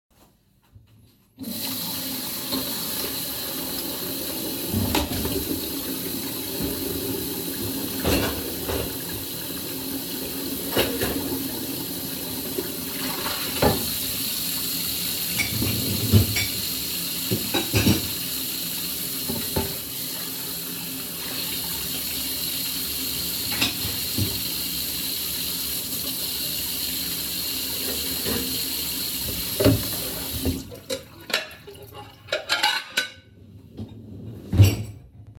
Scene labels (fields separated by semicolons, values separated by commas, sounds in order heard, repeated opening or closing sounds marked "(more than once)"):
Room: kitchen; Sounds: running water, cutlery and dishes